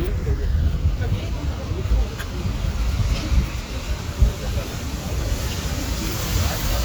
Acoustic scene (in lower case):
residential area